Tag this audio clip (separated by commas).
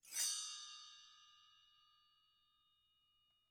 Bell